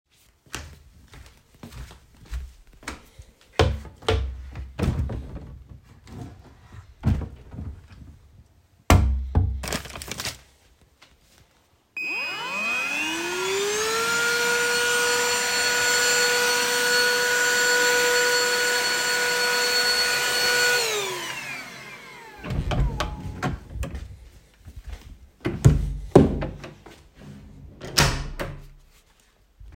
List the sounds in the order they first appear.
footsteps, wardrobe or drawer, vacuum cleaner, window